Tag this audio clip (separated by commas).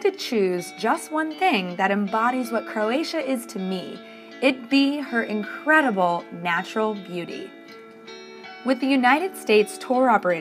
Music, Speech